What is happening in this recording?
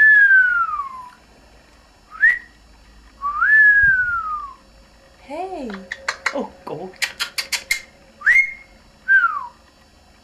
Whisling followed by speech